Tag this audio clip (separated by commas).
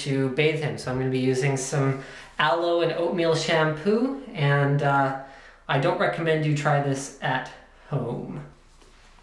Speech